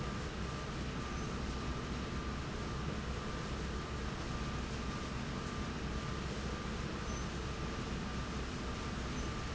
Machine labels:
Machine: slide rail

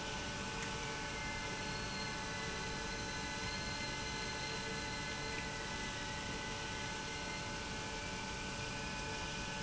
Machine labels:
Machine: pump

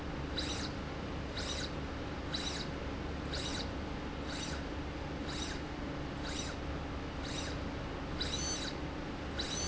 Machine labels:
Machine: slide rail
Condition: abnormal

